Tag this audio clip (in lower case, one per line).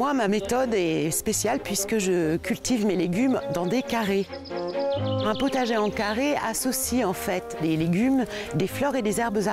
music
speech